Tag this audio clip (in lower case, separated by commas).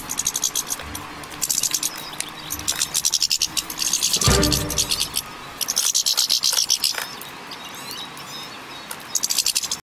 music, bird